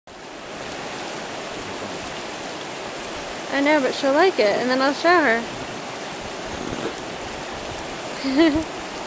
Water running down river and woman speaking